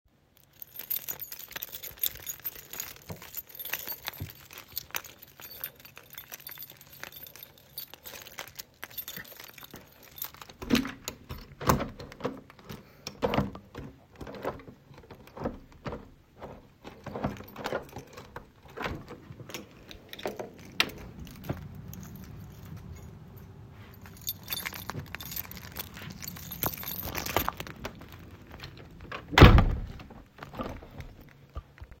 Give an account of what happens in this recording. Keys jingle while unlocking, opening and closing a door.